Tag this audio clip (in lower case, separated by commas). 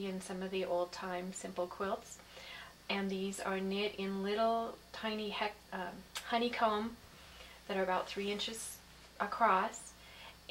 speech